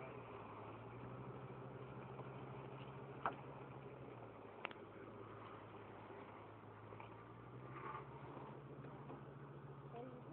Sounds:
Truck, Vehicle

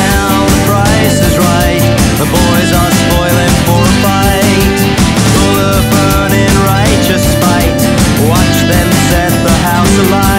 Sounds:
Music

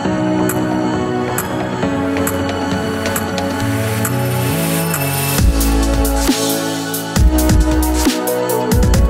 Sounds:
Music

